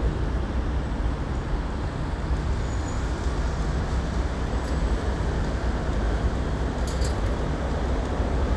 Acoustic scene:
street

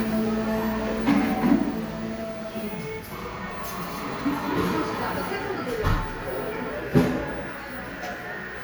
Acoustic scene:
cafe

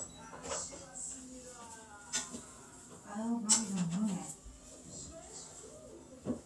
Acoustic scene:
kitchen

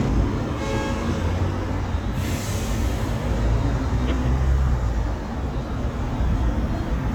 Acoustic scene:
street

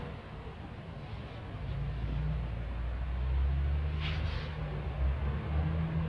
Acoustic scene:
residential area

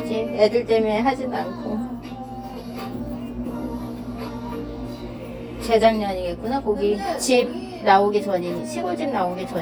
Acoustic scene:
cafe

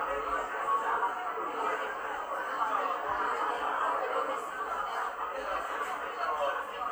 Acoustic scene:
cafe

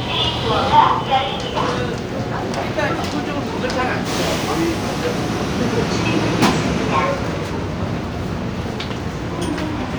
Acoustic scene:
subway station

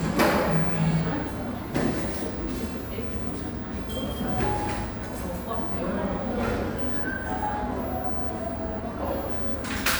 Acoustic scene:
cafe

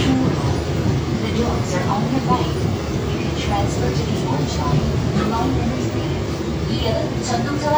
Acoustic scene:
subway train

